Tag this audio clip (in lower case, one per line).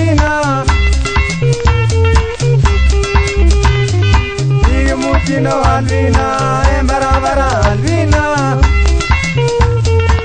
music